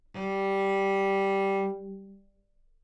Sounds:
bowed string instrument, musical instrument, music

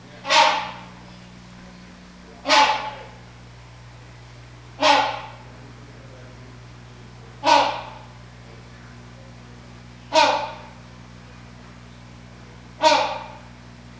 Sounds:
wild animals, bird, animal

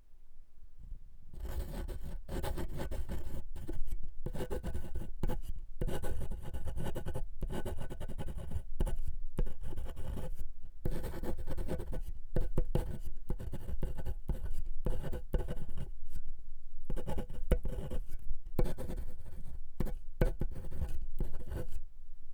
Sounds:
home sounds, writing

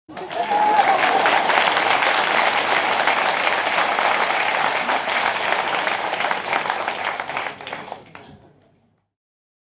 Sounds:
crowd, applause, human group actions

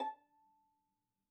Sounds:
musical instrument, bowed string instrument, music

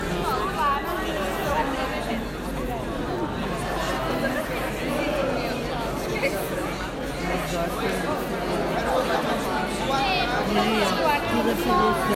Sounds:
chatter, human voice, human group actions, crowd, laughter

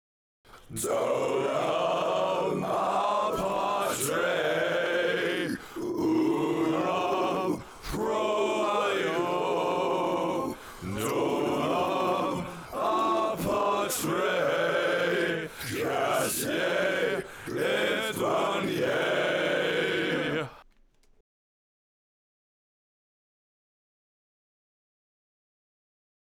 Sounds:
human voice, singing, music, musical instrument

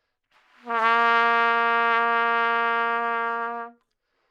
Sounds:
brass instrument, music, musical instrument, trumpet

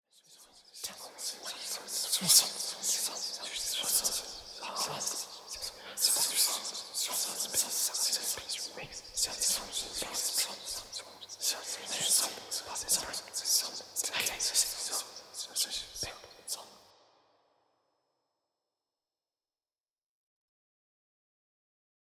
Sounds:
human voice, whispering

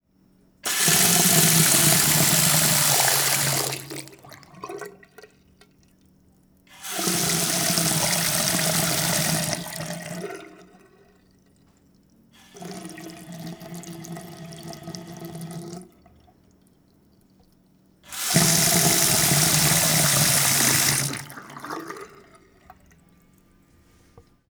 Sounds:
sink (filling or washing), home sounds, faucet

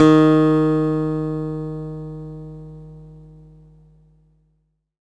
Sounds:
plucked string instrument, guitar, music, acoustic guitar, musical instrument

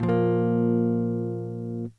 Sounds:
music, electric guitar, guitar, musical instrument, plucked string instrument, strum

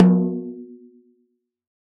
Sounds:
snare drum, percussion, drum, music, musical instrument

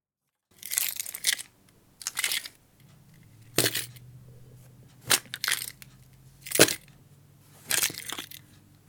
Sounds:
keys jangling, domestic sounds

